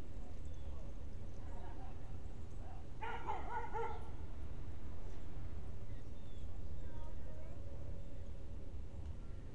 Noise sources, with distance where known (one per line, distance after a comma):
dog barking or whining, far